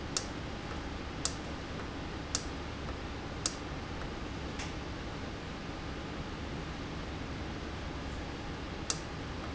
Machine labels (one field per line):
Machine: valve